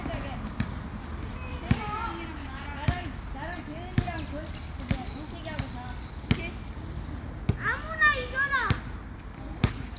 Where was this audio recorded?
in a residential area